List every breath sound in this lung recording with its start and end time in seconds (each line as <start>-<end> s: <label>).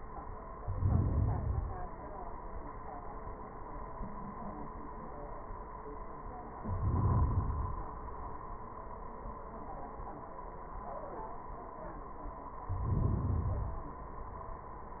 0.53-1.50 s: inhalation
1.50-2.45 s: exhalation
6.57-7.36 s: inhalation
7.37-9.03 s: exhalation
12.67-13.31 s: inhalation
13.33-14.34 s: exhalation